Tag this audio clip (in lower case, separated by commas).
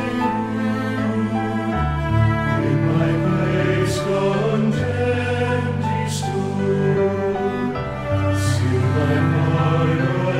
music, sad music